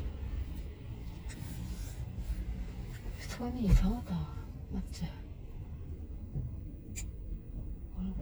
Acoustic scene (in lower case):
car